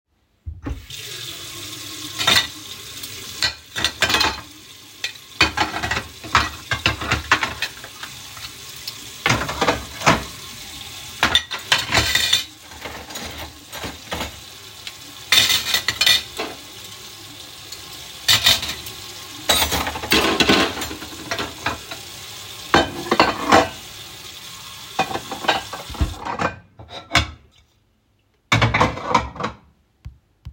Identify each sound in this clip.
running water, cutlery and dishes